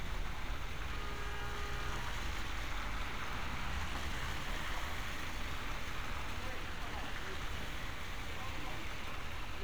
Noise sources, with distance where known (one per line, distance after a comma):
engine of unclear size
car horn
person or small group talking, near